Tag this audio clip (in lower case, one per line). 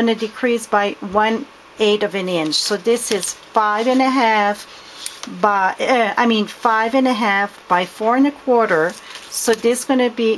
speech